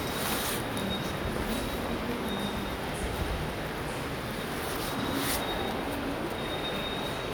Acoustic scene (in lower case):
subway station